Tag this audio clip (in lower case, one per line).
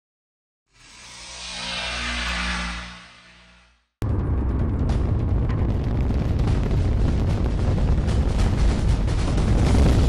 music